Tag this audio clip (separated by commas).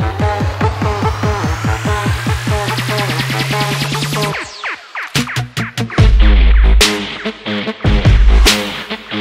Music, Electronic dance music